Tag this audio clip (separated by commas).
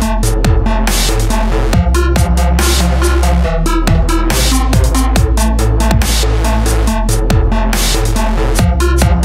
Music